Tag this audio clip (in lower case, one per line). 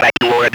human voice
speech